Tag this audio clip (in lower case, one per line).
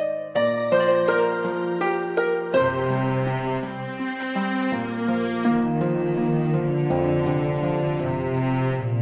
music
soundtrack music